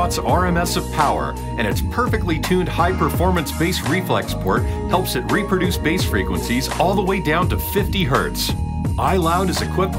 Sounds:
Music, Speech

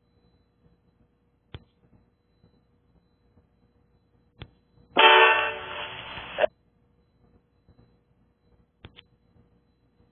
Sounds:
Music

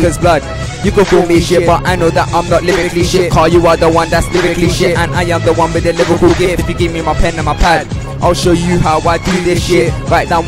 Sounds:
Music, Rhythm and blues

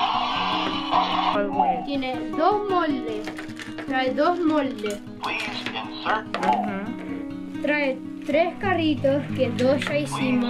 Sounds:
Music, Speech

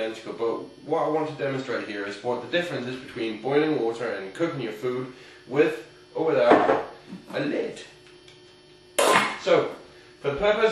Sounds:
Speech

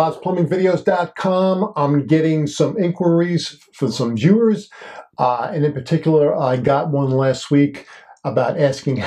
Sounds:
Speech

